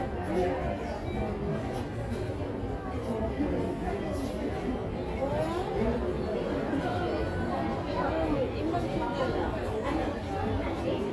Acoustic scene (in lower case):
crowded indoor space